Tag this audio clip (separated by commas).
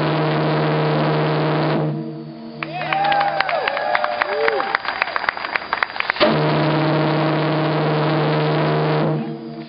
Steam whistle